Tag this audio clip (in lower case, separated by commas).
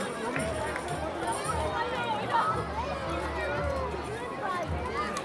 crowd, human group actions